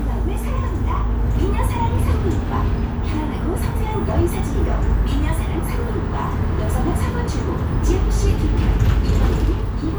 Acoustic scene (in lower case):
bus